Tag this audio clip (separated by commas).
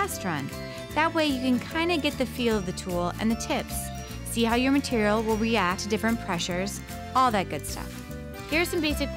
Music, Speech